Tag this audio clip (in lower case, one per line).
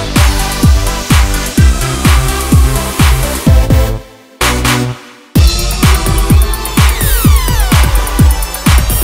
music
electronica